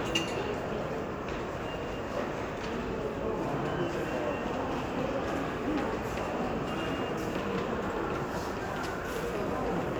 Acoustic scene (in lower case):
crowded indoor space